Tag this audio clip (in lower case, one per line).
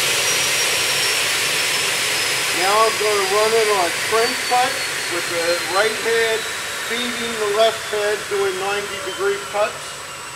speech